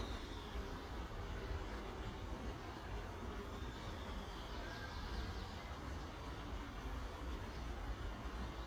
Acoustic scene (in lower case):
park